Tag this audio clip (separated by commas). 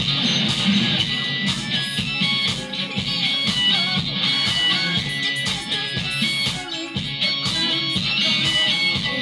Bass guitar, Strum, Electric guitar, Musical instrument, Music, Guitar, playing bass guitar, Plucked string instrument